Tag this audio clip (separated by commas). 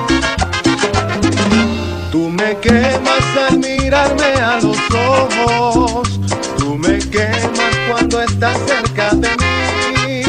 Music